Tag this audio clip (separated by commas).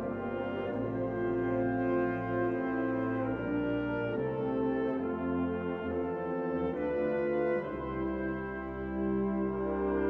Music